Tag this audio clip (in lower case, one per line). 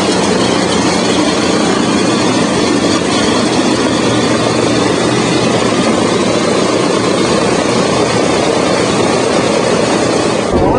vehicle
outside, urban or man-made
airscrew